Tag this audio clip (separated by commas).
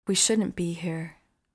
Human voice, Female speech, Speech